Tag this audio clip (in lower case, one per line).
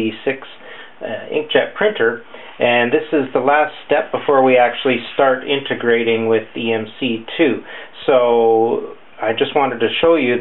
speech